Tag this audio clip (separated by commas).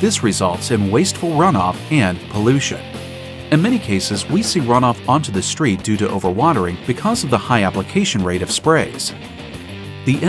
Speech, Music